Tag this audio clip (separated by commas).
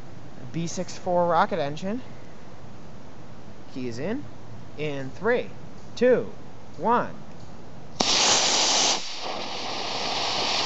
Speech